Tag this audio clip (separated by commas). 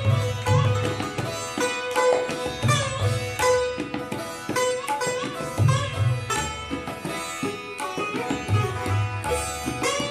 playing sitar